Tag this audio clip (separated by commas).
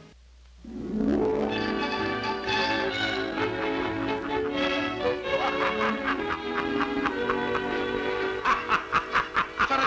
Music, Speech